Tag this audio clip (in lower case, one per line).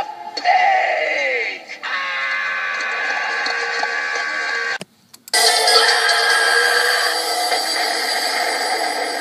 speech